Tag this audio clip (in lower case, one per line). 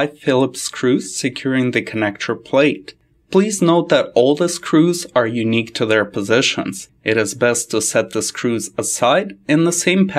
speech